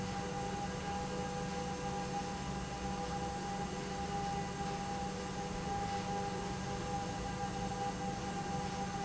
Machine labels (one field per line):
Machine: pump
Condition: normal